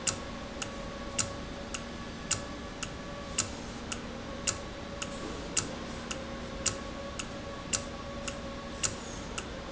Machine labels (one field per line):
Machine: valve